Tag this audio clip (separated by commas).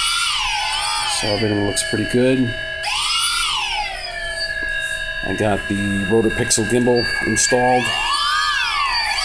Speech